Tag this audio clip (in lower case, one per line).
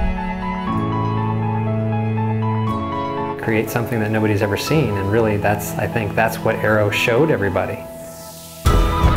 speech
music